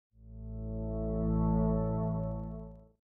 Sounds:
music

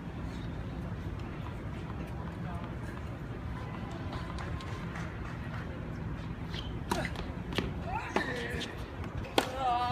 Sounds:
speech

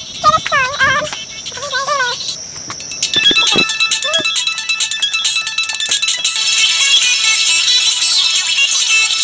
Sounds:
speech
music

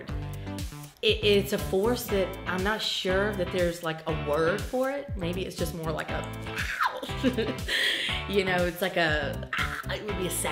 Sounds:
music
speech

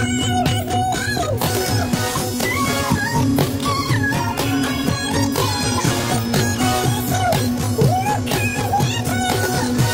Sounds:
music

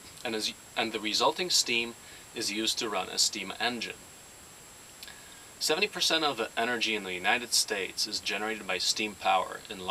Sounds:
speech

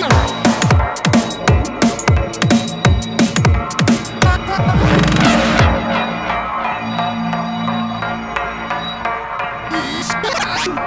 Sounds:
dubstep
drum and bass
music
electronic music

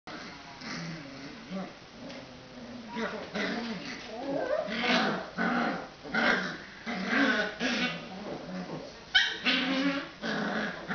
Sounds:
animal
dog
pets

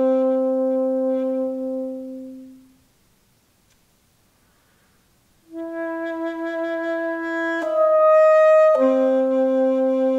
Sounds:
brass instrument
music
musical instrument
wind instrument
saxophone

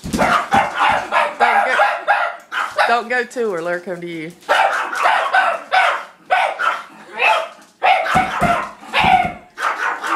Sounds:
dog
yip
animal
speech

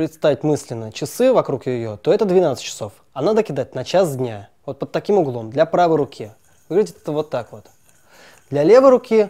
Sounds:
speech

